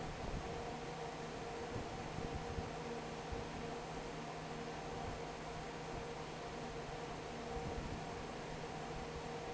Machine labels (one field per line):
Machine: fan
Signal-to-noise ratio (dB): 6 dB